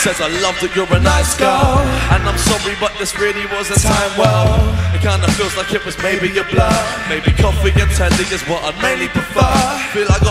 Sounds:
music

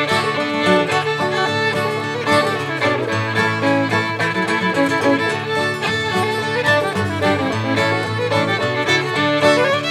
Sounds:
music

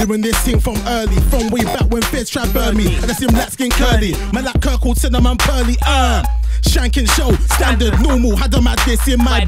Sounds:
music
rapping
hip hop music
singing
song

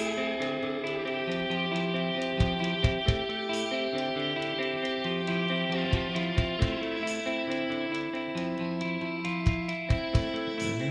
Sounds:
music
jazz

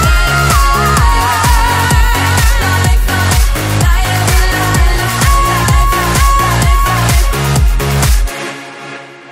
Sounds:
electronic dance music

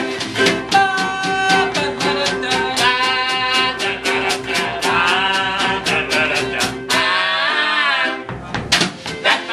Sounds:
music
musical instrument

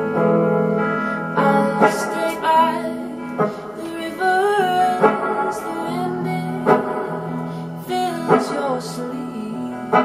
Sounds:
guitar
musical instrument
plucked string instrument
music

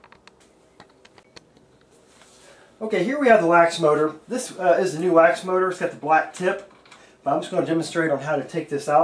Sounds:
speech

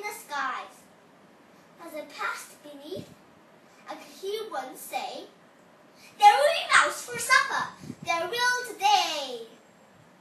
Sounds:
child speech
male speech
speech

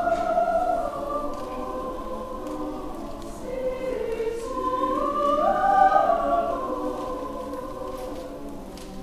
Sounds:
lullaby

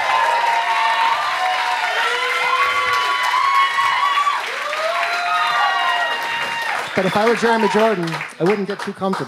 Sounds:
speech

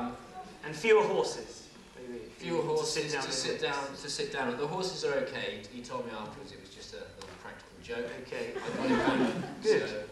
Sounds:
inside a small room
speech

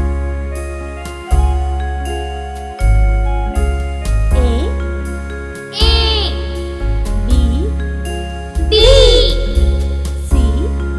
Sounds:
music for children
music
speech

